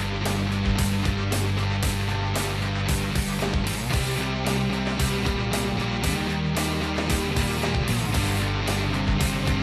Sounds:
music

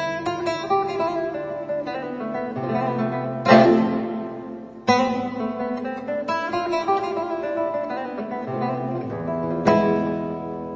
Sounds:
guitar, music, plucked string instrument, acoustic guitar, strum, musical instrument

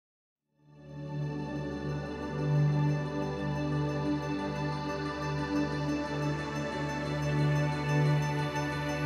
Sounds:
new-age music

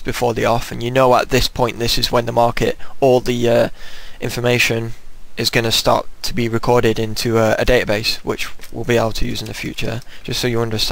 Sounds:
speech

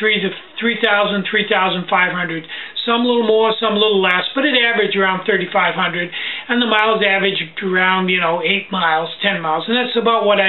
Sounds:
speech

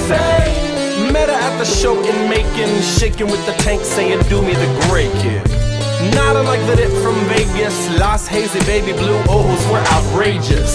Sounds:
sampler, music

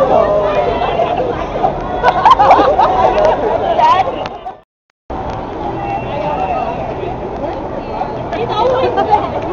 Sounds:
speech, inside a public space

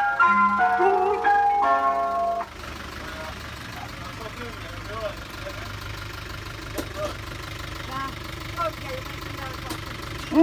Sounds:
ice cream van

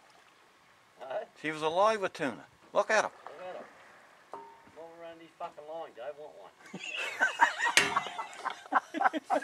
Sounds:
speech, stream

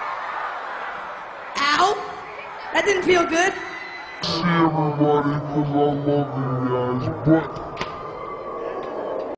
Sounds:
speech

